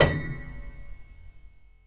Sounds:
Piano, Musical instrument, Keyboard (musical), Music

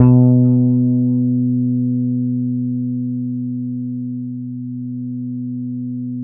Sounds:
Music, Bass guitar, Musical instrument, Plucked string instrument, Guitar

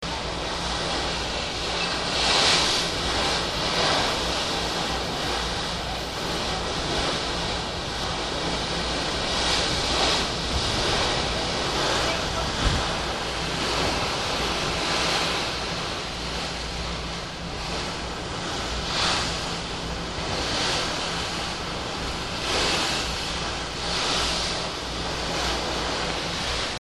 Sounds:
Boat, Ocean, Water, Vehicle

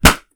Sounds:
Explosion

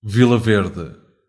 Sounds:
Human voice

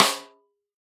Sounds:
Music, Musical instrument, Drum, Snare drum, Percussion

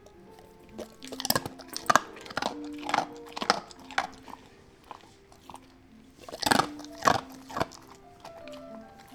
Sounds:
mastication, pets, Animal, Dog

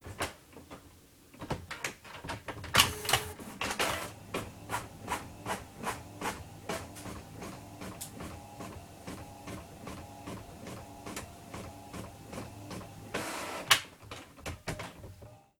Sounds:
Mechanisms, Printer

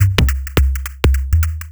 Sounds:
Music, Musical instrument, Percussion, Drum kit

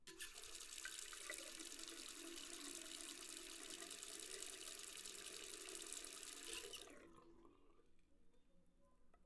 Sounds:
home sounds, faucet

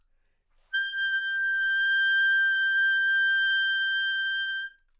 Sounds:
Music, Wind instrument, Musical instrument

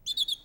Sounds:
Bird, Wild animals, Animal, Bird vocalization, tweet

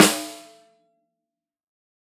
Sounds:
Musical instrument, Drum, Music, Snare drum, Percussion

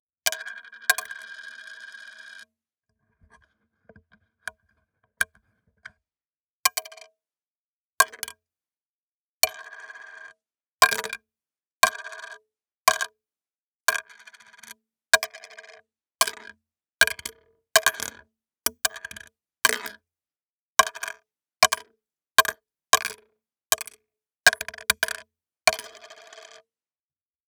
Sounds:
home sounds, Coin (dropping)

